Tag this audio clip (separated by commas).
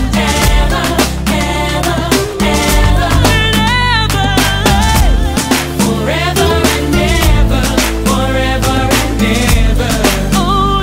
Music of Africa, Music